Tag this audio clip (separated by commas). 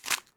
crinkling